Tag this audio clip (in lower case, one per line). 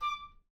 musical instrument
woodwind instrument
music